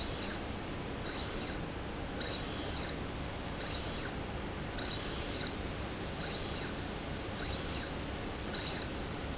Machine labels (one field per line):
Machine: slide rail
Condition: abnormal